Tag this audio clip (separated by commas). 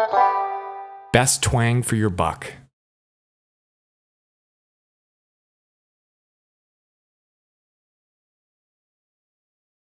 Music, Speech